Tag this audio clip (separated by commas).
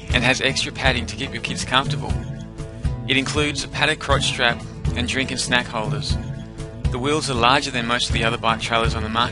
Speech, Music